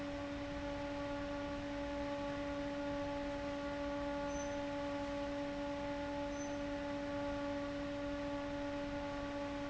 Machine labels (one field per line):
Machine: fan